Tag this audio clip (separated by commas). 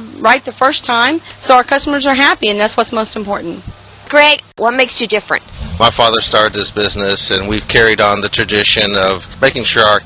Speech